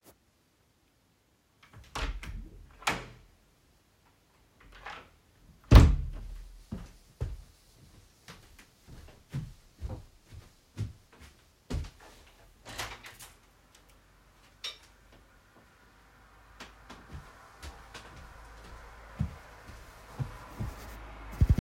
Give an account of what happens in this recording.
I walked over to the window and opened it to let in some air. After a moment I closed it again and stepped away.